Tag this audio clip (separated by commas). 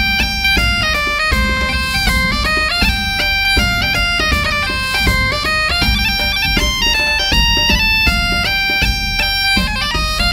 Wind instrument, Bagpipes